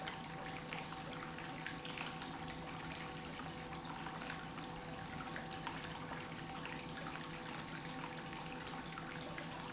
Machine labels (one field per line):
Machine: pump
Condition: normal